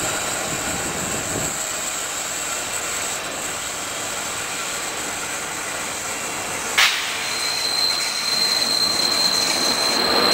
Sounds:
train, vehicle, rail transport, railroad car

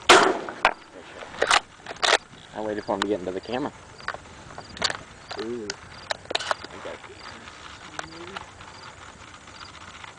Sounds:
bird, speech

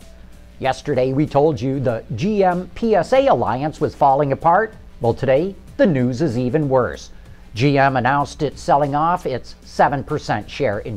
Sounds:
music, speech

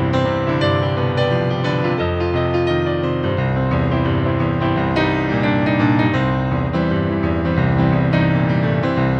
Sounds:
music

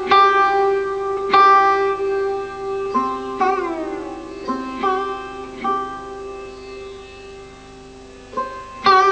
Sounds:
music, musical instrument, sitar

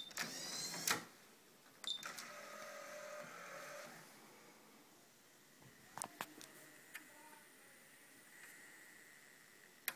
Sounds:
inside a small room

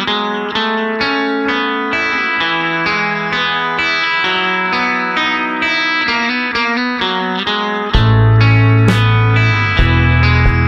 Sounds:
music, distortion

